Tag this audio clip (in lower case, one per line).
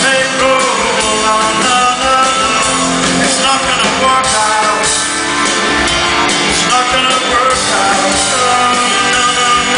music
pop music
funk